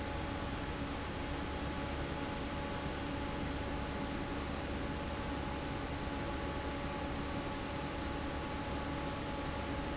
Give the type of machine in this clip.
fan